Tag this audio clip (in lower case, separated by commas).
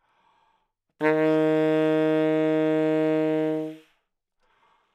musical instrument, woodwind instrument, music